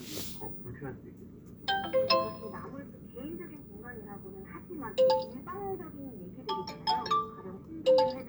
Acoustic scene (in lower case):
car